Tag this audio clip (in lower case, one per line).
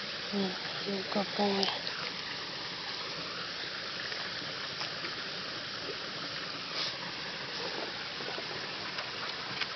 speech